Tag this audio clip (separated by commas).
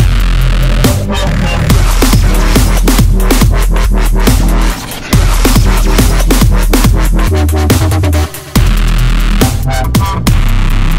Electronic music, Dubstep, Music